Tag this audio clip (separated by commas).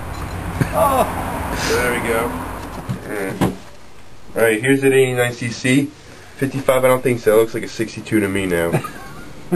outside, urban or man-made, inside a small room, Speech